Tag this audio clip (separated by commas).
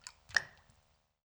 Raindrop, Rain, Water